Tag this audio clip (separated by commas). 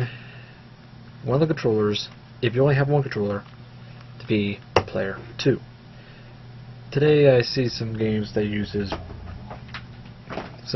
Speech